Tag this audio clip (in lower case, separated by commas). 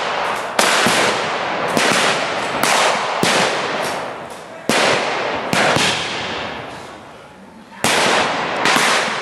firecracker